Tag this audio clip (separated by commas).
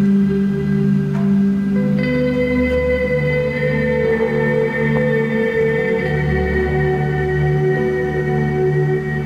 Whale vocalization, Music